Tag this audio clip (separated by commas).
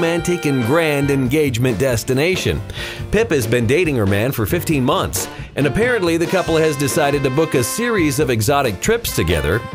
Speech, Music